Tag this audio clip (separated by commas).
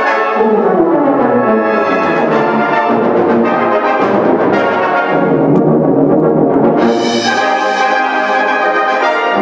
Music, Brass instrument